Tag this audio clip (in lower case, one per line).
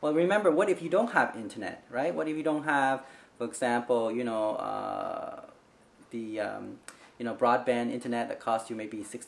speech